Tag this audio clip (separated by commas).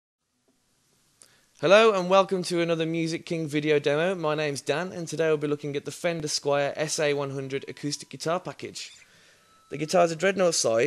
Speech